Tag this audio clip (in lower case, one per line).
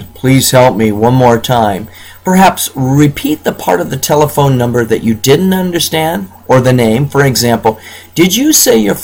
speech